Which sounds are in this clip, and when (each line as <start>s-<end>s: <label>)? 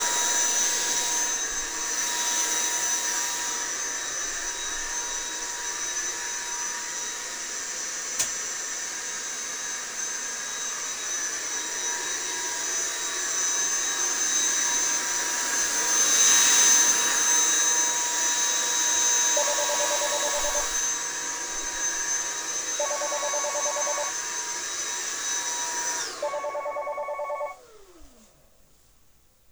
0.0s-28.2s: vacuum cleaner
8.2s-8.3s: light switch
19.4s-20.7s: phone ringing
22.8s-24.1s: phone ringing
26.2s-27.6s: phone ringing